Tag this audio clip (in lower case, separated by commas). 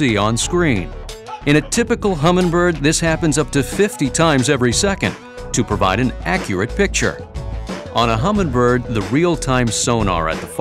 speech, music